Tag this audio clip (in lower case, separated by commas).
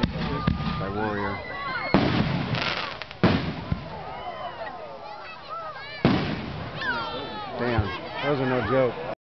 speech, fireworks